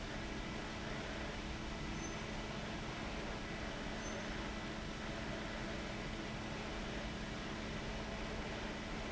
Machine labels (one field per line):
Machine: fan